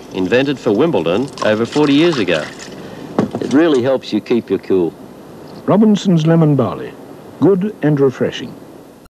A man is speaking and pours something